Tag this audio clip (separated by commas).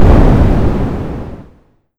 Boom, Explosion